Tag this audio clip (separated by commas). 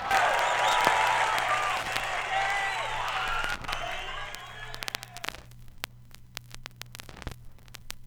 Crackle